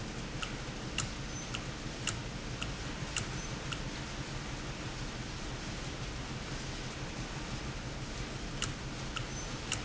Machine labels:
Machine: valve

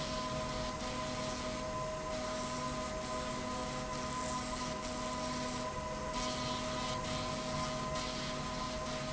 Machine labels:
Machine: slide rail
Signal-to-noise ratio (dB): -6 dB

